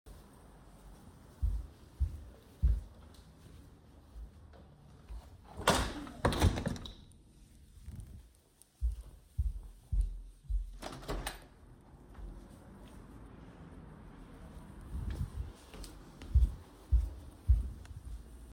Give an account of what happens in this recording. I walked across the living room to the windows, then closed one and opened the other one. Then I walked back.